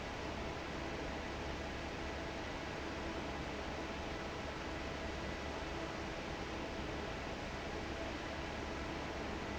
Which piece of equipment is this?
fan